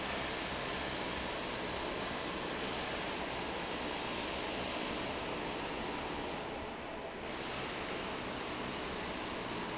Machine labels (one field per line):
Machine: fan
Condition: normal